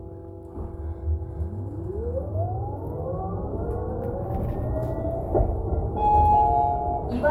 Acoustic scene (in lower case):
bus